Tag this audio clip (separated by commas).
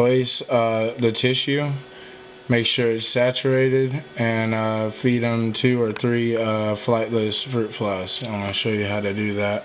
Speech